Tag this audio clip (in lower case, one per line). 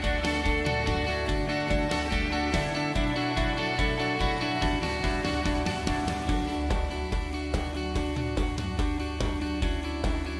music